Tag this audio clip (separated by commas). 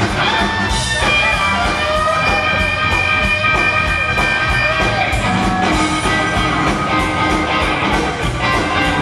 Orchestra, Music